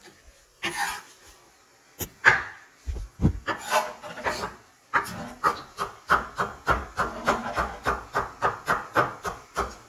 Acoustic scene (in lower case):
kitchen